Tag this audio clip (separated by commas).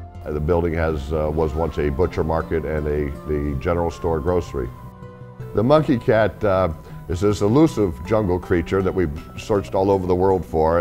Music, Speech